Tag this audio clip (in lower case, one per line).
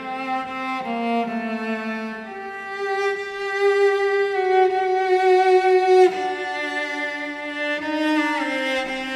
cello
sad music
music
musical instrument